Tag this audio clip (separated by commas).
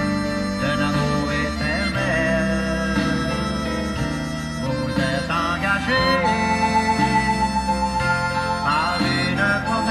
Country, Music